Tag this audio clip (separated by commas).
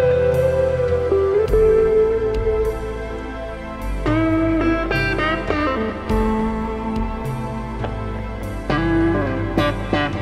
slide guitar, Music